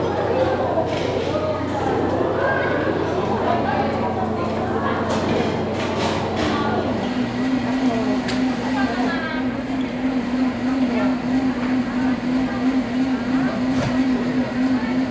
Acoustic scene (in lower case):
cafe